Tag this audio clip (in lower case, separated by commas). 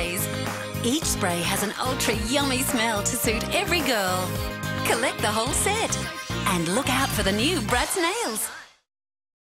spray, music, speech